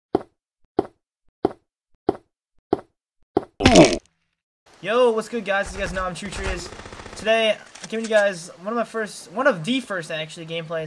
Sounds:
Speech

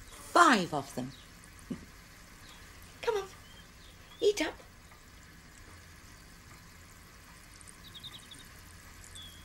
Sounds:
Animal, Speech, outside, rural or natural

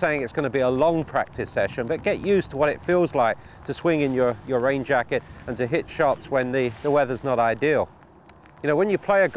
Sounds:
Speech

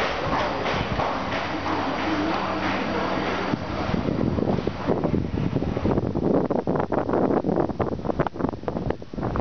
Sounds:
Wind

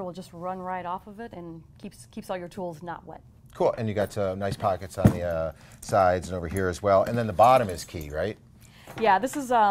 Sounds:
Speech

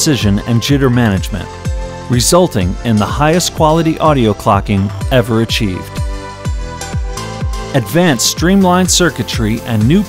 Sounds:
Music, Speech

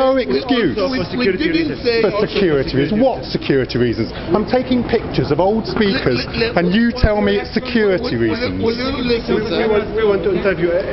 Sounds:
Speech

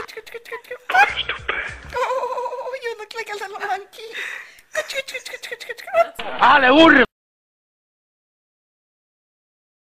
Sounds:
Animal, Speech, Cat, Domestic animals

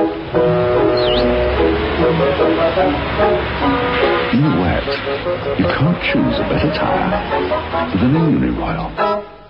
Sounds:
Speech, Music

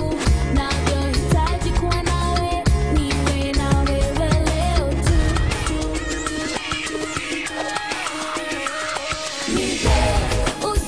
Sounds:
Music

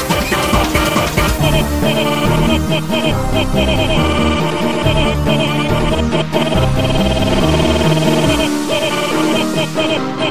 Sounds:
Trance music, Music

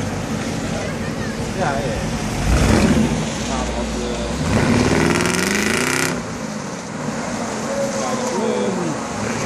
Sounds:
Speech

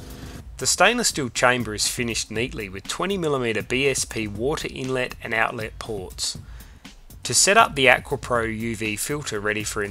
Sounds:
Music, Speech

